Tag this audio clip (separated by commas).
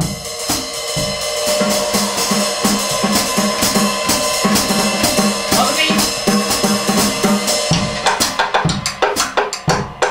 Drum kit, Drum, Musical instrument, Speech, Music, Jazz, inside a large room or hall